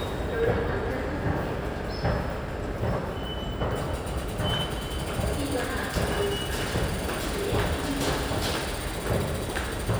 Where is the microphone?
in a subway station